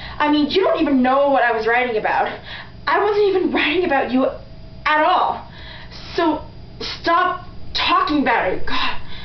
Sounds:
monologue
speech

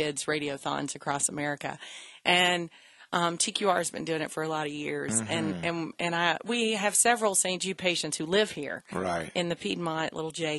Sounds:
speech

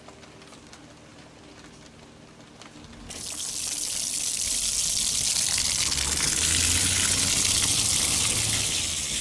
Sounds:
water

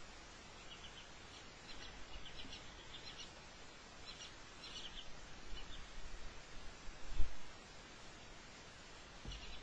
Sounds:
mouse

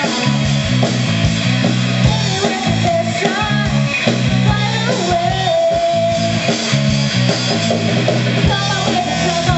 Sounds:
music

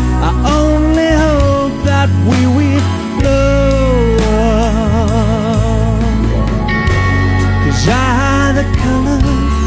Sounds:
singing
inside a large room or hall
music

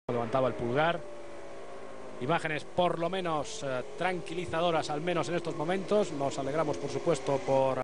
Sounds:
car
motor vehicle (road)
speech
vehicle

